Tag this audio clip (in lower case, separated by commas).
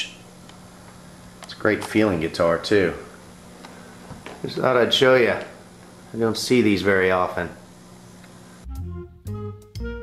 music, speech